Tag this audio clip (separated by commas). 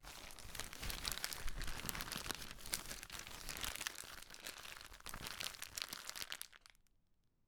Crackle